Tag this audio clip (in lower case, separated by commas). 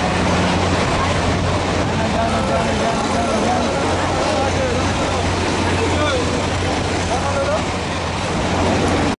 outside, urban or man-made, speech, bird, pigeon